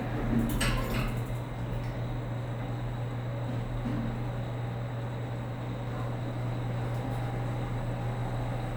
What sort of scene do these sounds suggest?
elevator